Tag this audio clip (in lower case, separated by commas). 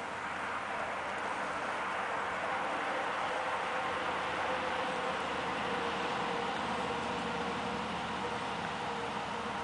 speech